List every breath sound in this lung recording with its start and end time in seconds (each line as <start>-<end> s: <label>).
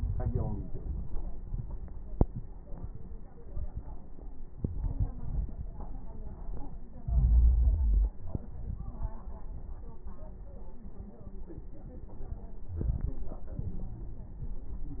7.05-8.22 s: inhalation
12.71-13.39 s: inhalation
12.71-13.39 s: crackles
13.43-14.11 s: exhalation